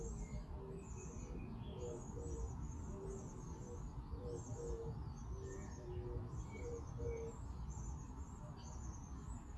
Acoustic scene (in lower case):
park